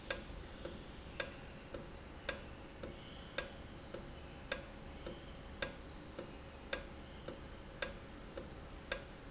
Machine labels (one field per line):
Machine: valve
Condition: normal